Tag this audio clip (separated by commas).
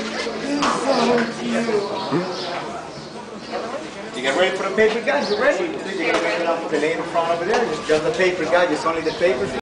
Music, Speech